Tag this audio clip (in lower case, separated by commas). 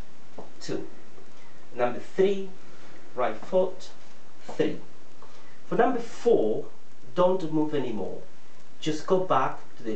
speech